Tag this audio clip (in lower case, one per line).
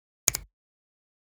hands
finger snapping